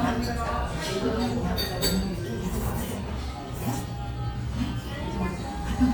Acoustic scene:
restaurant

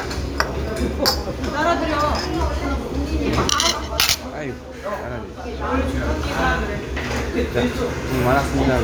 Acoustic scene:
restaurant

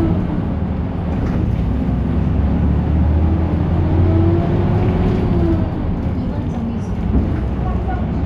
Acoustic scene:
bus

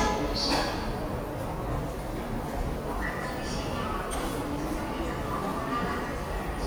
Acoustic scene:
subway station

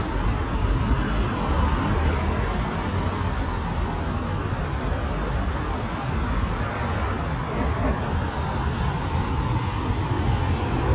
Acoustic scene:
street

